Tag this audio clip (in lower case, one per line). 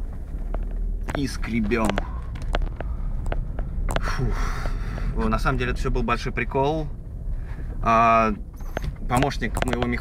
speech
car
vehicle